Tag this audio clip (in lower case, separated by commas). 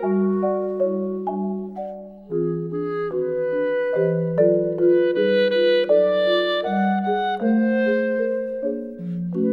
xylophone, musical instrument, music, percussion